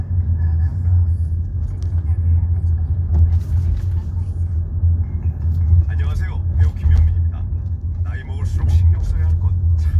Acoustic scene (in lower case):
car